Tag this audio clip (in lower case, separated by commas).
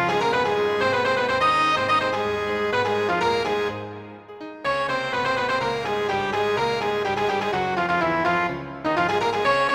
music